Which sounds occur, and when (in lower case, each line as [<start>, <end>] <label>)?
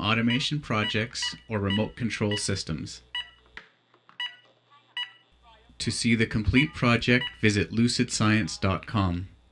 [0.00, 1.32] man speaking
[0.00, 9.51] noise
[0.23, 0.39] beep
[0.73, 0.96] beep
[1.11, 1.31] beep
[1.45, 2.99] man speaking
[1.59, 1.77] beep
[2.24, 2.38] beep
[3.07, 3.34] beep
[3.50, 3.72] generic impact sounds
[3.85, 3.99] generic impact sounds
[4.12, 4.38] beep
[4.64, 4.94] man speaking
[4.93, 5.22] beep
[5.36, 7.20] man speaking
[6.48, 6.69] beep
[7.18, 7.36] beep
[7.36, 9.28] man speaking